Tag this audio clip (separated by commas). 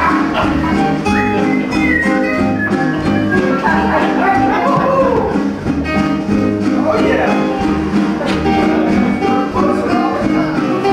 Speech, Music